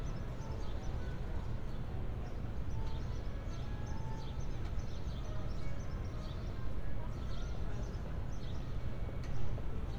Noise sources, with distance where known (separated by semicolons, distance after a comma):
music from an unclear source; unidentified human voice